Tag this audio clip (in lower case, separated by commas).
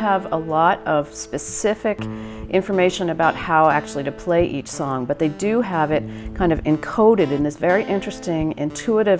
musical instrument, guitar, acoustic guitar, speech, music